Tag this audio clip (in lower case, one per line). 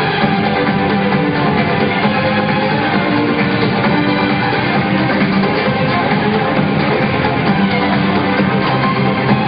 music
violin
musical instrument